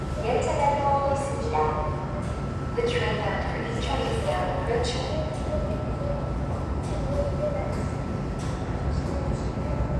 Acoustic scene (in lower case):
subway station